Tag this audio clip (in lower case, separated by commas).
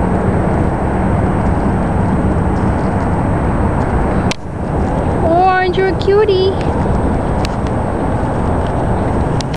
speech